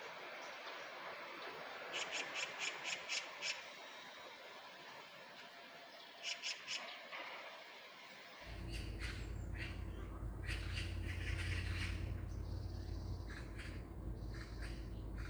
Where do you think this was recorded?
in a park